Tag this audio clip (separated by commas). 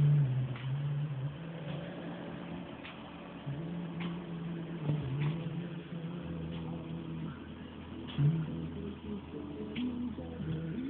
Music